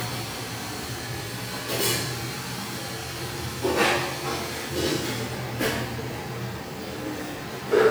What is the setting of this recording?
restaurant